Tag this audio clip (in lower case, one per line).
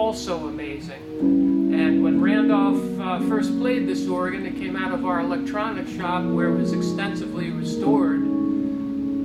speech
music
organ